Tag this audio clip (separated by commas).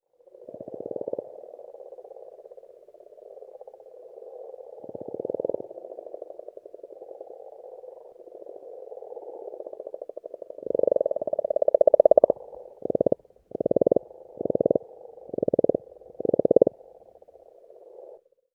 Animal, Frog, Wild animals